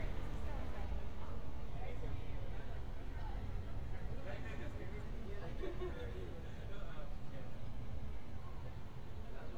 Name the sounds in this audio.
person or small group talking